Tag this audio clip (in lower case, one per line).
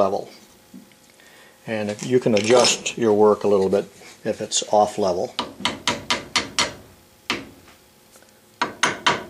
speech
inside a small room